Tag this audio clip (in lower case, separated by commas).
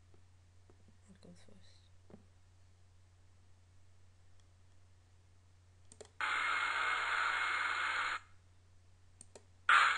speech